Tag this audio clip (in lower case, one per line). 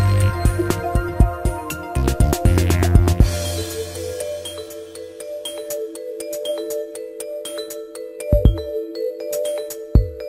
new-age music
music